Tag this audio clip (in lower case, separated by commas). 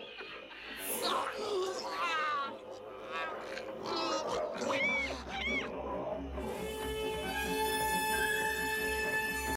music